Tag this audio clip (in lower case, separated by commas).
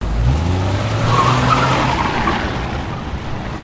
car, vehicle, motor vehicle (road)